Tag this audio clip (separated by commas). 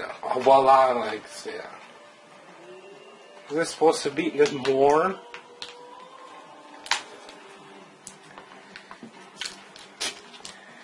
Speech, inside a small room